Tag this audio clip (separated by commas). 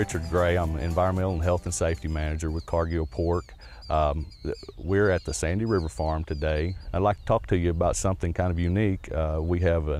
Speech